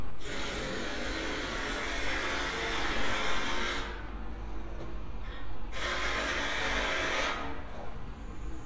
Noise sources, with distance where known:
unidentified impact machinery

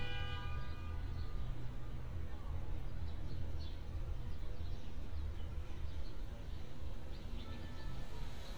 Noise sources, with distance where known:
car horn, near

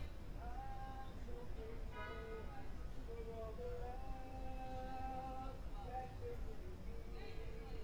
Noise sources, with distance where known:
music from a fixed source; unidentified human voice, far

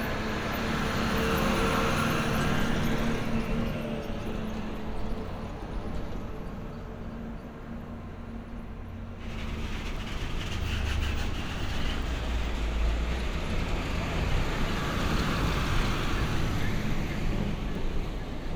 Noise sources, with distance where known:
large-sounding engine, near

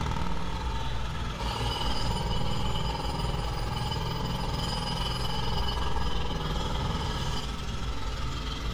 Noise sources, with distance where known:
jackhammer, near

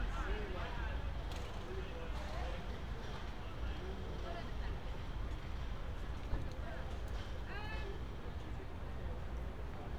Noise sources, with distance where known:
person or small group talking

